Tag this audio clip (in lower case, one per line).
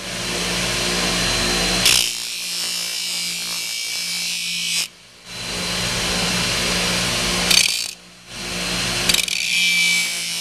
tools